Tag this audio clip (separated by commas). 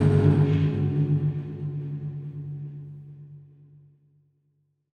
Music, Percussion, Gong, Musical instrument